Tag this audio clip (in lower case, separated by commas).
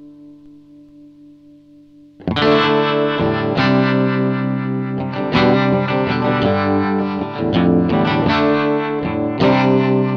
musical instrument, effects unit, plucked string instrument, guitar, music